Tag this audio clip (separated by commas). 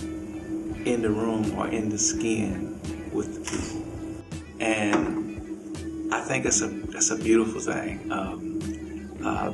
Music, Speech